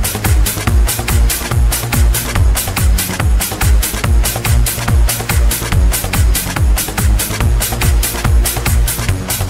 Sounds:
techno, electronic music, music

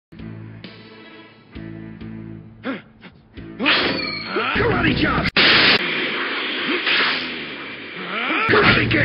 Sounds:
music, speech

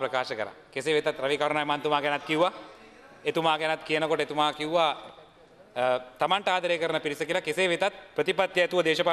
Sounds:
speech, male speech

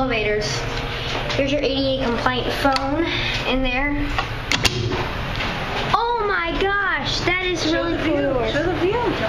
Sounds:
speech

